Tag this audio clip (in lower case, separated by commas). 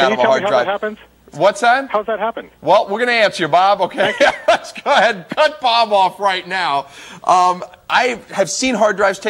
speech